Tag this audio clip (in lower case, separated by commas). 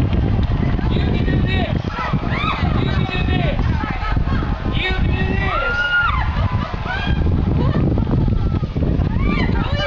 speech